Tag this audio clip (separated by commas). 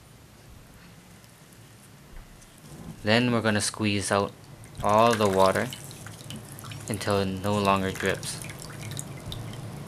Drip, inside a small room, Speech